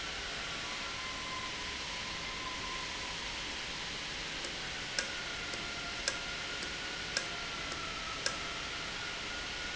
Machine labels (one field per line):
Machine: valve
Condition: normal